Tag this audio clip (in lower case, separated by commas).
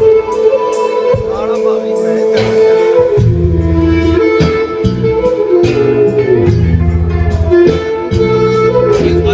inside a large room or hall, music, speech